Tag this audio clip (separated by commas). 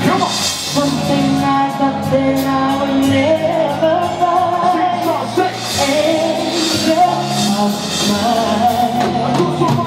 Male singing, Music, Female singing